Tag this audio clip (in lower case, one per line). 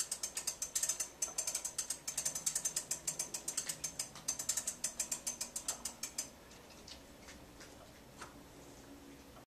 tick-tock